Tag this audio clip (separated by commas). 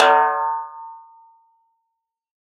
Drum, Snare drum, Music, Percussion, Musical instrument